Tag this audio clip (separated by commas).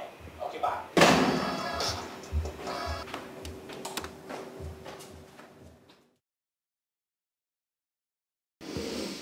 Music, Speech, Buzz